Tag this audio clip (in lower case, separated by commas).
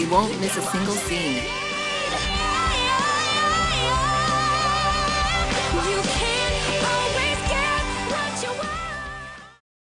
speech, music